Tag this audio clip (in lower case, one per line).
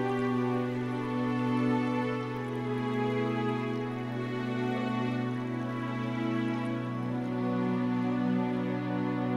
music